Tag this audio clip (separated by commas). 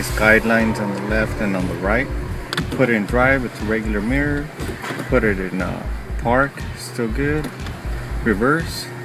Speech